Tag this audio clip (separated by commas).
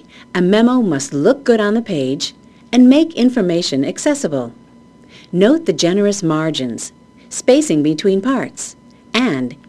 Speech